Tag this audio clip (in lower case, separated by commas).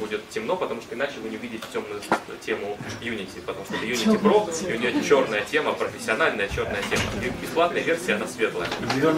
speech